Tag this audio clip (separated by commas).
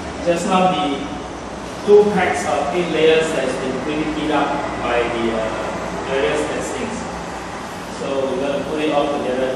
Speech